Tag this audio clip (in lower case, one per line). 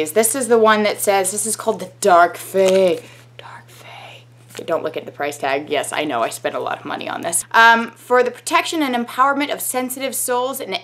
whispering